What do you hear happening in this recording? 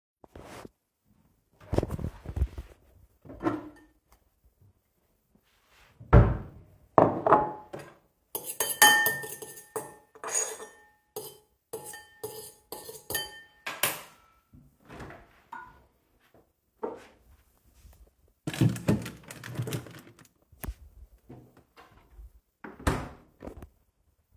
I opened a cabinet, took out a bowl and closed the cabinet, I started stirring something and put it in the fridge above a plastic box that seems to have let out a crushing sound, I closed the fridge